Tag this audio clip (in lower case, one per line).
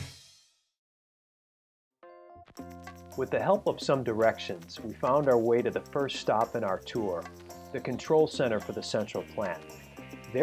speech
music